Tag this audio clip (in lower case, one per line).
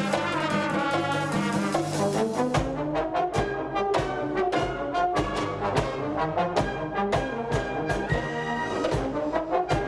orchestra
woodwind instrument